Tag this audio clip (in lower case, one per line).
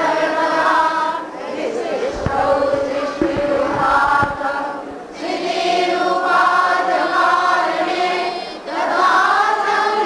mantra